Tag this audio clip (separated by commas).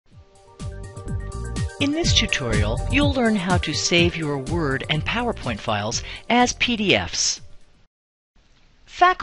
monologue